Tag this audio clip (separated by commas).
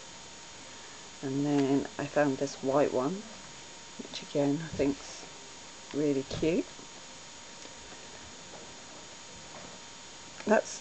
Speech